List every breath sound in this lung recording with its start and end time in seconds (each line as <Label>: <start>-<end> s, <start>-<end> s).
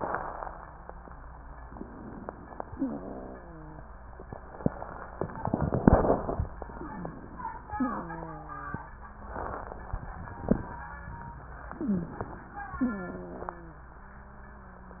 Inhalation: 1.69-2.71 s, 6.58-7.73 s, 11.71-12.77 s
Wheeze: 2.75-5.17 s, 6.75-7.18 s, 7.74-10.43 s, 11.71-12.18 s, 12.83-15.00 s